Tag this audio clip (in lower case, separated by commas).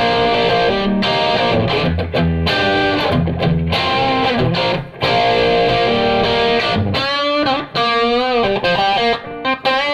guitar, musical instrument, plucked string instrument, effects unit, music